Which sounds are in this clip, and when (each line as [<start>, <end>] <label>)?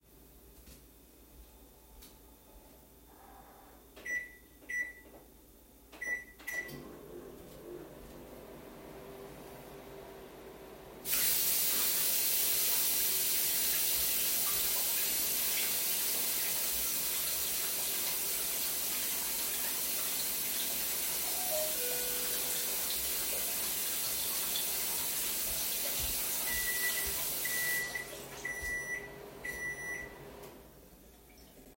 [3.93, 5.05] microwave
[5.97, 30.53] microwave
[11.02, 28.21] running water
[21.16, 23.01] bell ringing